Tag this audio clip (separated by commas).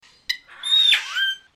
Animal, Bird, Wild animals